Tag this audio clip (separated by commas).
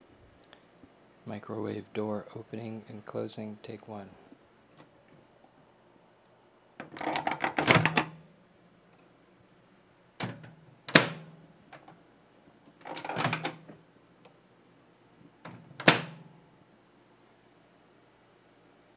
Domestic sounds, Microwave oven